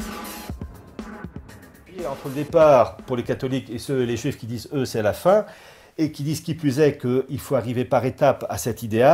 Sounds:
speech, music

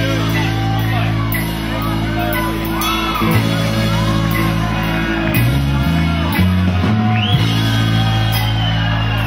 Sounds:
music

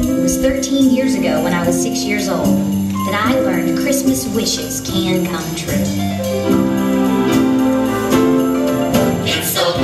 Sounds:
speech, music

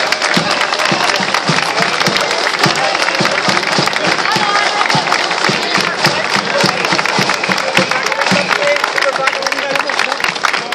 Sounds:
footsteps, speech

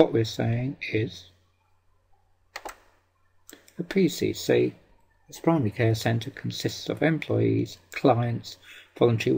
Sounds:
speech

